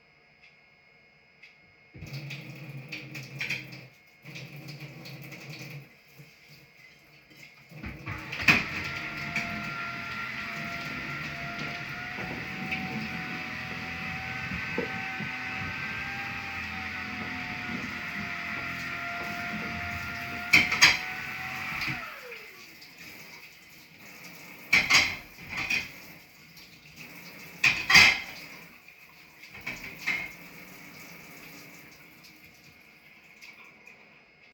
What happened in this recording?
While I was washing some dishes with running water, my mom used the vacuum cleaner to clean the living room.